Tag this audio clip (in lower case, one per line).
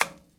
tap